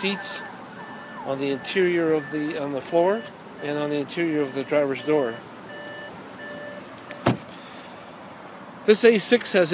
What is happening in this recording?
A man speaking while a car beeps, then he shuts the door